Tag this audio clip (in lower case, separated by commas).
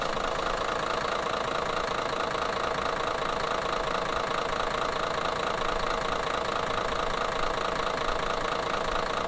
vehicle, motor vehicle (road), bus, engine